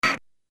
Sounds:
mechanisms, printer

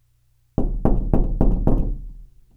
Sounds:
door, knock, domestic sounds

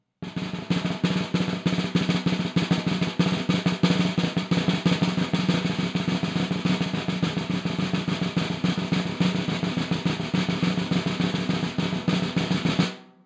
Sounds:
percussion, drum, snare drum, music, musical instrument

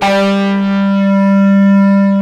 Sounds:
musical instrument, guitar, bass guitar, music, plucked string instrument, electric guitar

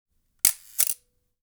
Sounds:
camera, mechanisms

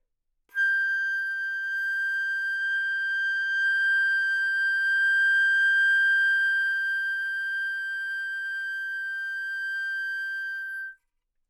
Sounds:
musical instrument, woodwind instrument, music

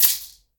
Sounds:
percussion, musical instrument, rattle (instrument), music

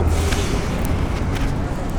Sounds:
vehicle, rail transport, metro

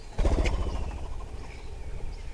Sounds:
wild animals, animal, bird

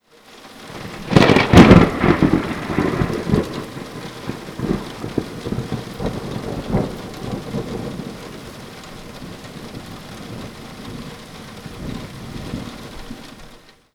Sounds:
rain, thunder, thunderstorm, water

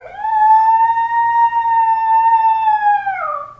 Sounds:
animal, pets, dog

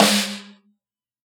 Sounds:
music, percussion, musical instrument, snare drum, drum

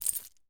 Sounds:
keys jangling, home sounds

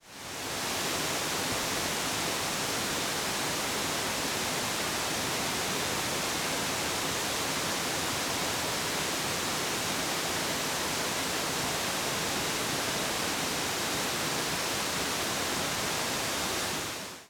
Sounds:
water

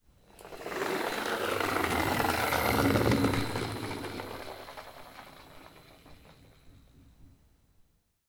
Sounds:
engine

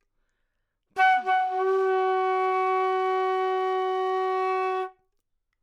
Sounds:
musical instrument, music, woodwind instrument

